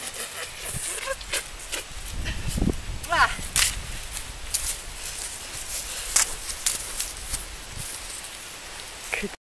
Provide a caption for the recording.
An animal clip clopping by